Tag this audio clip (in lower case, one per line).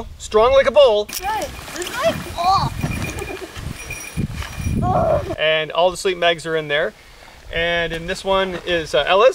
speech